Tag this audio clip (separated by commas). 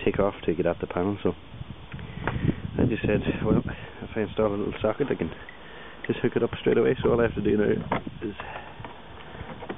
Speech